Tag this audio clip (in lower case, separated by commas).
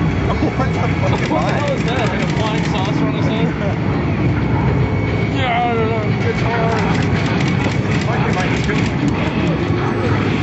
speech